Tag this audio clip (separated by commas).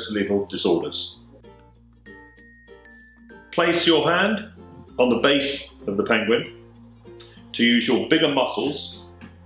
Speech, Music